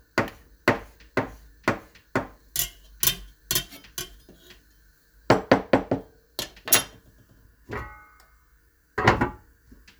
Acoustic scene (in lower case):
kitchen